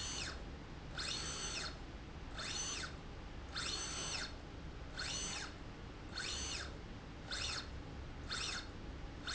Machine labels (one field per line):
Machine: slide rail